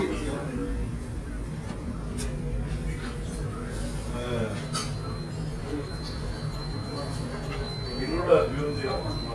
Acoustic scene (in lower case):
restaurant